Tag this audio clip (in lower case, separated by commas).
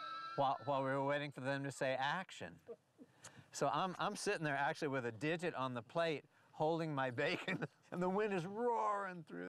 speech